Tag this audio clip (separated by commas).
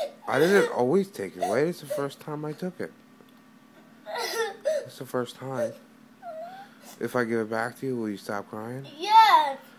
Speech